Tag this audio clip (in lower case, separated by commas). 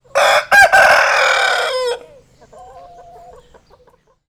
animal, livestock, fowl, chicken